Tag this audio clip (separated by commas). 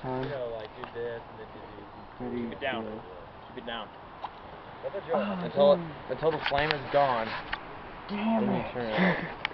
Zipper (clothing), Speech